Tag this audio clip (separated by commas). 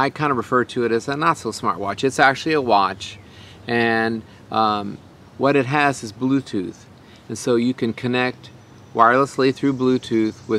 Speech